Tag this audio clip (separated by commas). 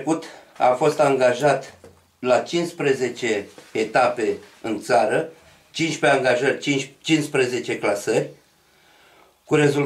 inside a small room, Speech